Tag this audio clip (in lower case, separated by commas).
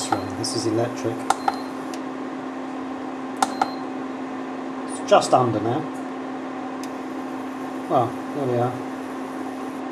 speech